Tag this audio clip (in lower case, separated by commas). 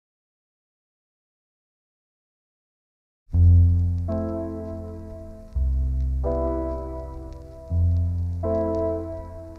music